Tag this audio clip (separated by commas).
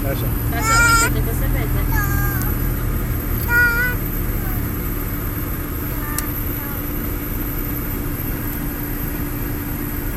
Car, Traffic noise, Motor vehicle (road), Vehicle, Speech